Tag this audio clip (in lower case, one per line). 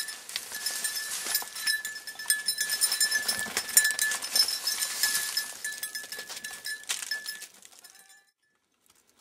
goat